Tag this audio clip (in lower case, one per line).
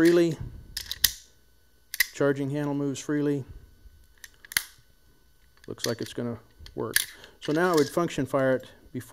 inside a small room
speech